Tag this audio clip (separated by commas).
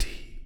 Human voice, Whispering